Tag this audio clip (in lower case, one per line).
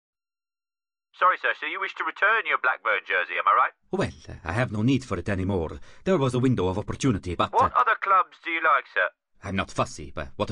speech synthesizer
speech